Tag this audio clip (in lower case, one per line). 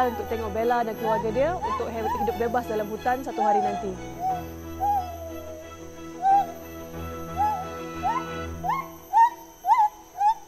gibbon howling